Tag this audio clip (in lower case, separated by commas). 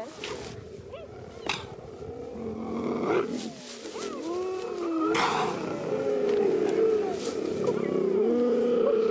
cheetah chirrup